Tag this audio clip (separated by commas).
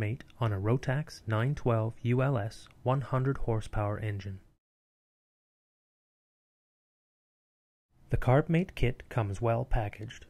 Speech